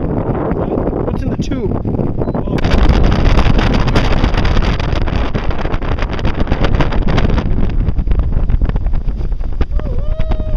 Strong wind is blowing, and adult males speak and whoop